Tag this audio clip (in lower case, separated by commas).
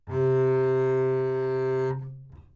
musical instrument, music, bowed string instrument